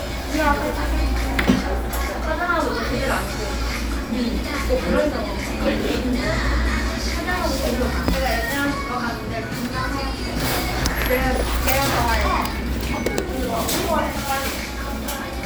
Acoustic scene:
cafe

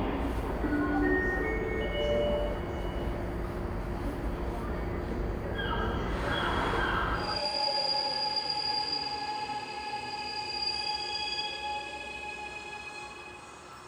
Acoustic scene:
subway station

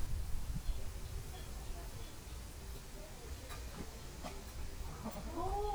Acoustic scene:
park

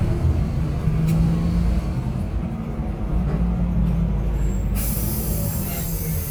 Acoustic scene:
bus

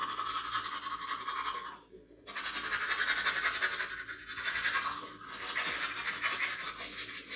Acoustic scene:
restroom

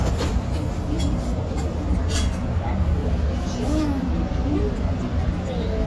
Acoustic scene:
restaurant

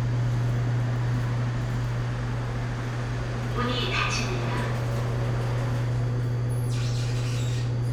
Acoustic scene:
elevator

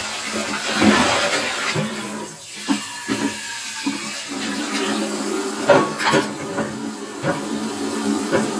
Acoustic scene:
kitchen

